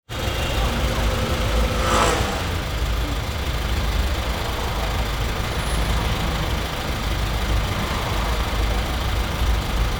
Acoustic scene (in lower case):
street